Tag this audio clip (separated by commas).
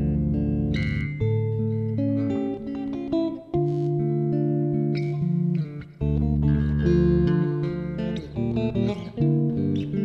Music, Bass guitar, Plucked string instrument, Guitar